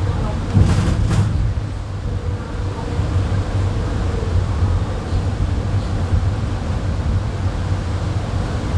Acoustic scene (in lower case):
bus